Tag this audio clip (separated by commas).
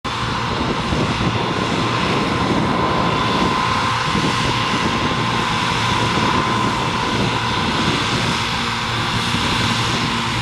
Truck, Vehicle